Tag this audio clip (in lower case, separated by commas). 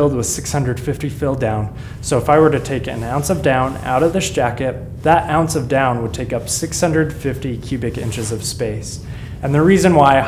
speech